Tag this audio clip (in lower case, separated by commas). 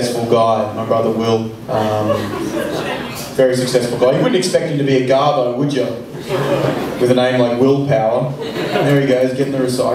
speech